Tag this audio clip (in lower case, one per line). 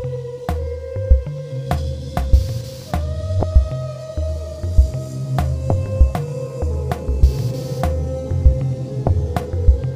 music